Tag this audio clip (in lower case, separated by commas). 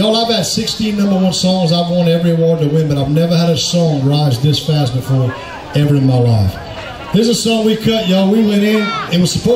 speech